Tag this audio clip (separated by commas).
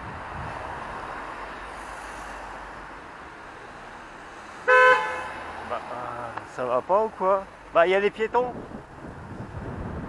vehicle horn